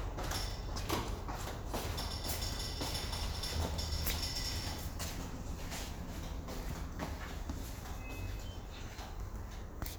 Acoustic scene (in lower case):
elevator